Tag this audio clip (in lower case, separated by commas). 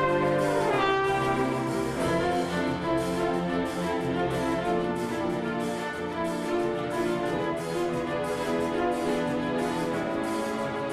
orchestra, music